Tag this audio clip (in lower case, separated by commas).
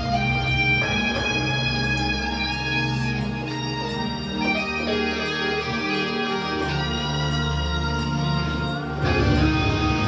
music, harpsichord, musical instrument